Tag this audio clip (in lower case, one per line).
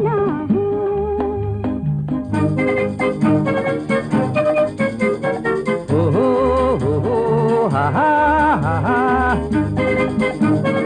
music